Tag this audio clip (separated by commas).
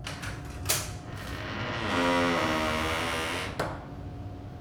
Squeak